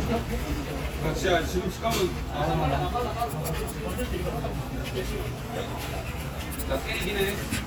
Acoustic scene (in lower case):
crowded indoor space